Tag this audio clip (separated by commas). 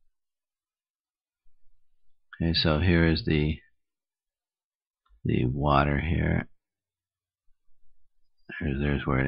Speech